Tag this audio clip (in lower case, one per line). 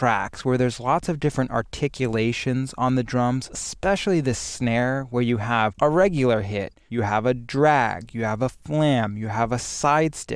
speech